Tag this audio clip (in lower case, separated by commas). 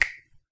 finger snapping, hands